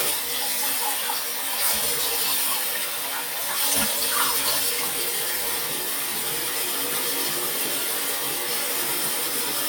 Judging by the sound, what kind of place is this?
restroom